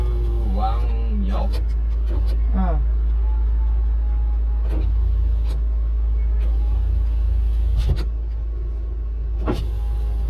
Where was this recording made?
in a car